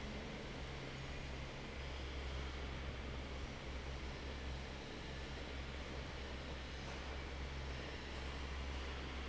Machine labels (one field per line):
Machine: fan